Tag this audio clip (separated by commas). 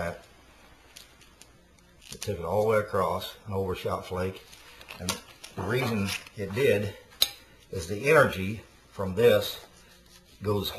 Speech